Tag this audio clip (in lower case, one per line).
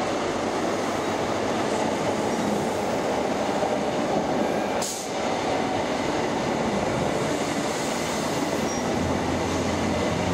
subway
train
rail transport
train wagon